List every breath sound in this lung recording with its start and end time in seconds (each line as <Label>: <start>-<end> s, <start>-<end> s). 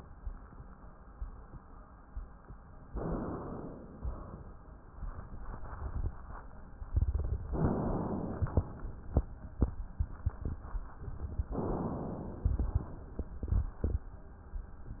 Inhalation: 2.90-3.85 s, 7.54-8.46 s, 11.52-12.58 s
Exhalation: 3.86-4.86 s, 8.45-9.40 s